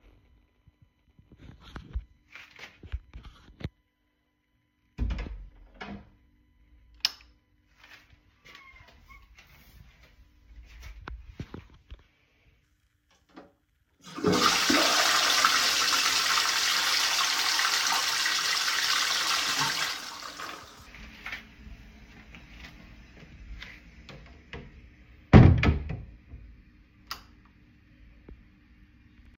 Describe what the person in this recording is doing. I opened the toilet door, turned on the light, flushed the toilet, then closed the door and turned off the light.